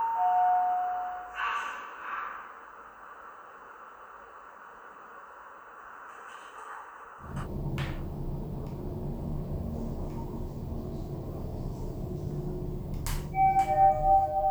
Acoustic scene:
elevator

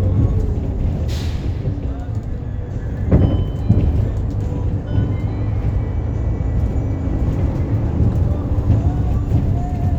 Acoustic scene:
bus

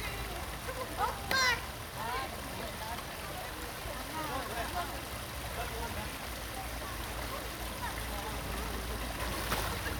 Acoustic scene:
park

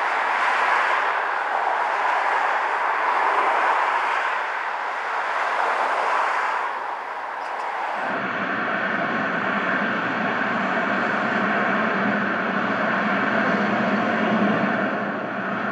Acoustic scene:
street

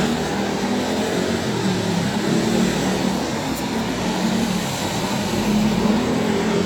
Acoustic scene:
street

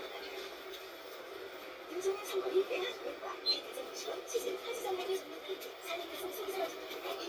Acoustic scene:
bus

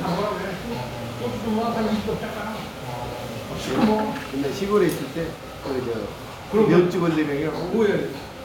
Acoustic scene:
restaurant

